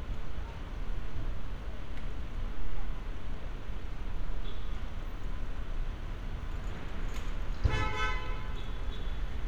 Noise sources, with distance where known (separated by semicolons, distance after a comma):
car horn, near